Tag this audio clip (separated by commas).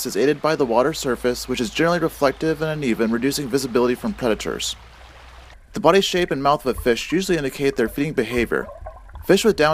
Speech, Stream